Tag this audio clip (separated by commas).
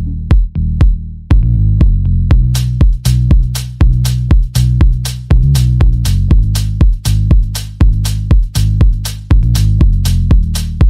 Disco, Music